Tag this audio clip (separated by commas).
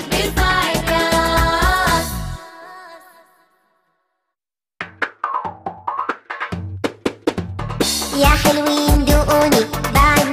Drum roll, Music for children, Music, Singing